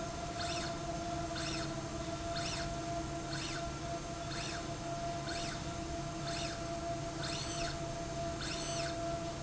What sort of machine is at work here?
slide rail